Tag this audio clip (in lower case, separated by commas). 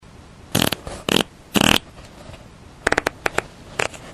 fart